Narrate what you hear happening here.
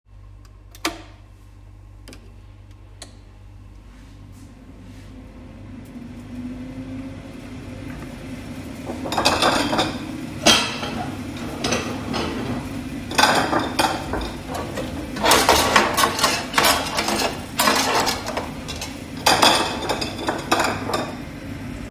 I switch on the kettle and the microwave. Then I stack the bowls and put away some cooking spoons.